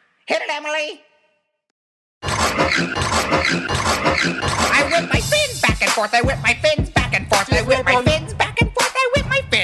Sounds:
Speech, Music

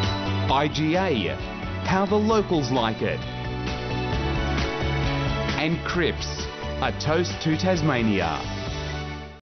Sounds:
Speech, Music

